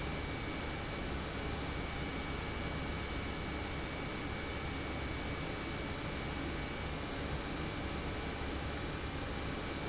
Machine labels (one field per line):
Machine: pump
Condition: normal